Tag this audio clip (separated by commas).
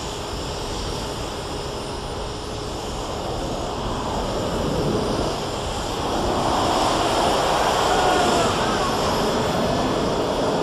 Engine, Speech